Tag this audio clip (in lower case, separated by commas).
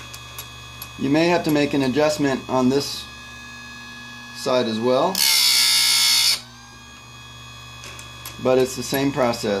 inside a small room, speech, tools